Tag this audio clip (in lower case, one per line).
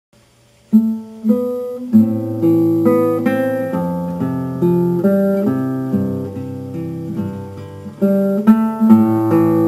guitar
musical instrument
plucked string instrument
music